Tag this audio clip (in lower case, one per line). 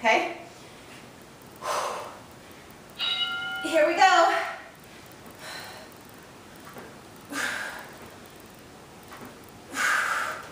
speech
inside a large room or hall